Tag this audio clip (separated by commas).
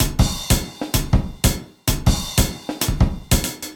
Drum, Music, Musical instrument, Percussion, Drum kit